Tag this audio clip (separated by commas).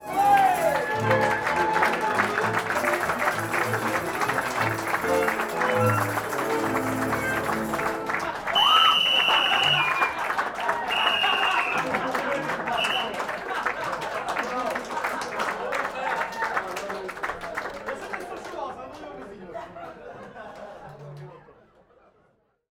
Human group actions, Applause